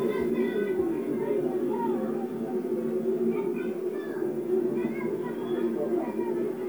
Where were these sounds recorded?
in a park